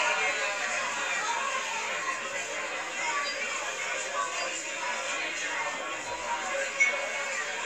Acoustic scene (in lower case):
crowded indoor space